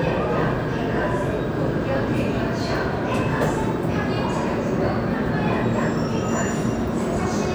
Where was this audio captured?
in a subway station